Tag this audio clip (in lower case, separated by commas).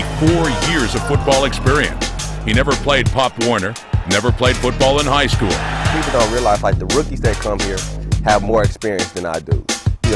speech, music